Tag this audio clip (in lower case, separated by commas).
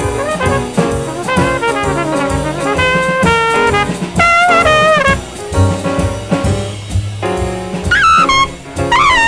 music, saxophone